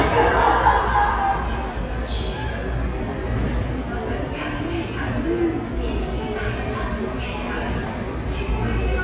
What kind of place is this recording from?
subway station